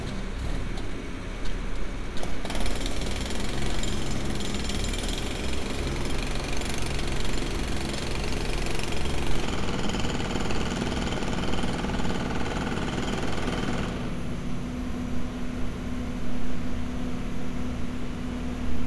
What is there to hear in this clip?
jackhammer